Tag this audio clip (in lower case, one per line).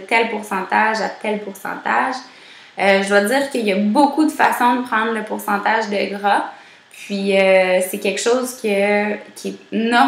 speech